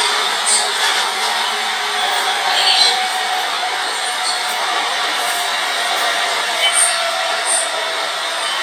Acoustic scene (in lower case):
subway train